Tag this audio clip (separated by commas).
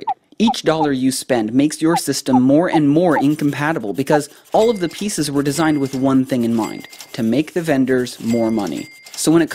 Speech